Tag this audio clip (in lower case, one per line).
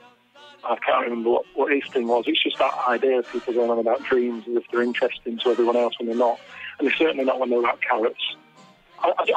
music
speech
radio